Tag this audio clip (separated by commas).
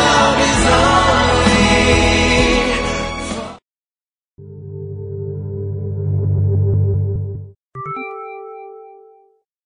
Music